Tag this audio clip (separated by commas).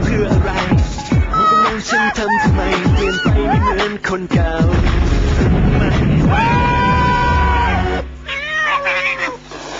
Music, pets, Cat, Meow, Animal